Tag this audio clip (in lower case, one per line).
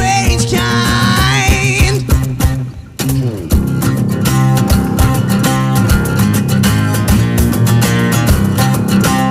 music